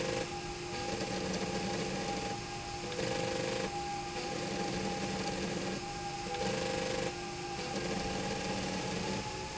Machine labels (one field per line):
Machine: slide rail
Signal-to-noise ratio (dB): -6 dB